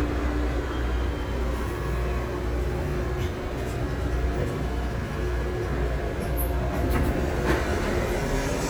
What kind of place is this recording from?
subway train